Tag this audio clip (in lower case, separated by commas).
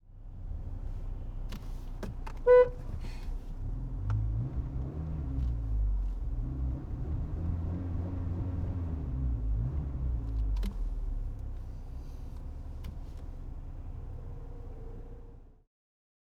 vehicle horn, motor vehicle (road), vehicle, alarm, car